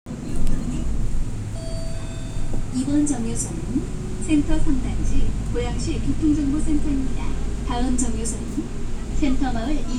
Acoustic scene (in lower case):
bus